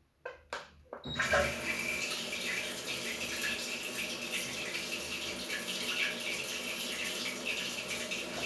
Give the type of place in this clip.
restroom